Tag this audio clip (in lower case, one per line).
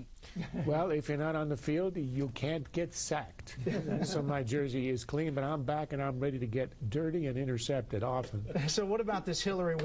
speech